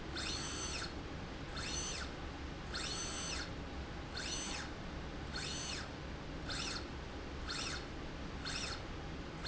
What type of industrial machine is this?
slide rail